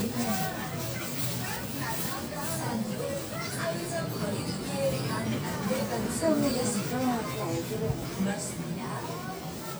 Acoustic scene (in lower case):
crowded indoor space